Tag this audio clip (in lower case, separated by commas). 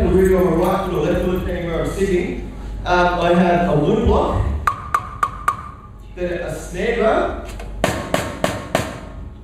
speech, musical instrument, drum kit, drum, music